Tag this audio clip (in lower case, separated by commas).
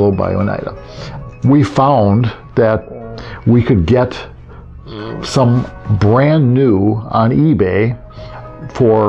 narration, speech, music